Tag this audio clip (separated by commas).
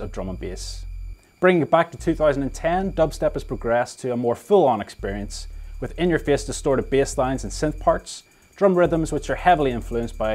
Speech